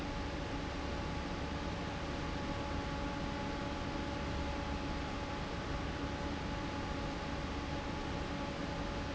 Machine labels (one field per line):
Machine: fan